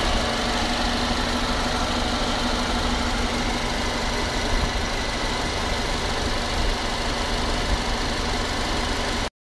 A medium engine is idling